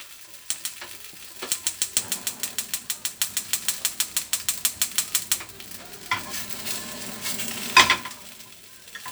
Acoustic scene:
kitchen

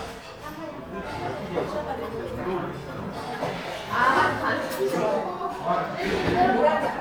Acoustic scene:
crowded indoor space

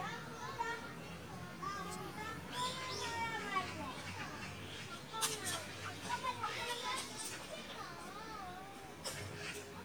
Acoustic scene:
park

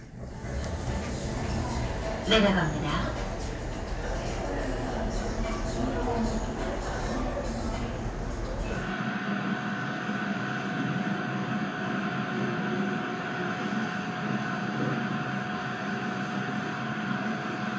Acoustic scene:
elevator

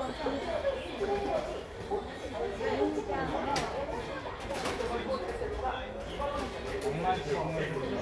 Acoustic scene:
crowded indoor space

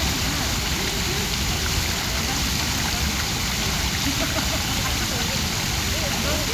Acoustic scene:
park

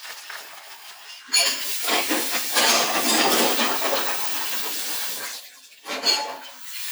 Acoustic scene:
kitchen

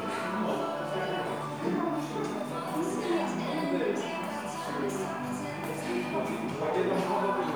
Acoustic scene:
crowded indoor space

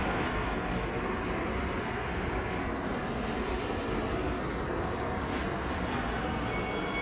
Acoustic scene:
subway station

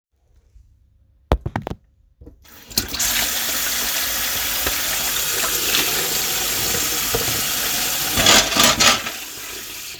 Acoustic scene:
kitchen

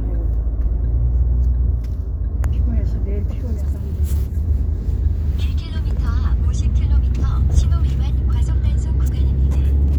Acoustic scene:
car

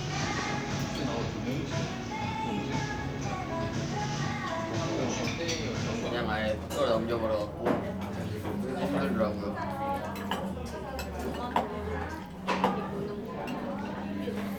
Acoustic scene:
crowded indoor space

